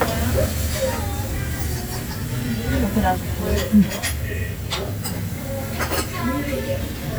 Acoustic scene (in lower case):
restaurant